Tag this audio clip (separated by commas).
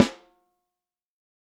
Music, Drum, Percussion, Musical instrument, Snare drum